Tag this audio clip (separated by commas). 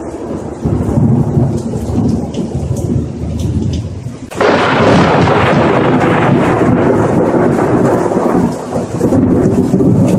Crackle